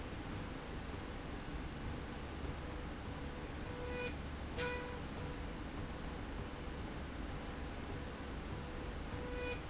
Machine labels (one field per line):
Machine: slide rail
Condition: normal